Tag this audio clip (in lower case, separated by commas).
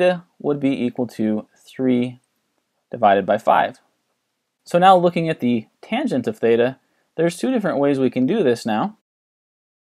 speech